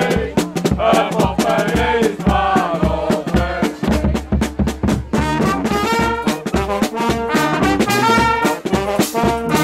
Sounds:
Music

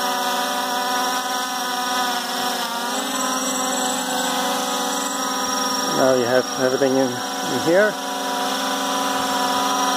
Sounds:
Speech

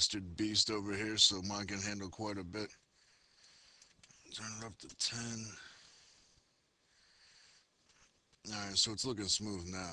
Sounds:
Speech

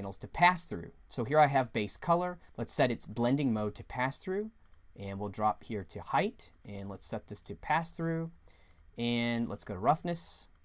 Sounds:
Speech

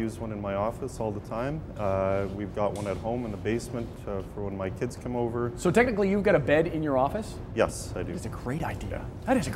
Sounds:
Speech

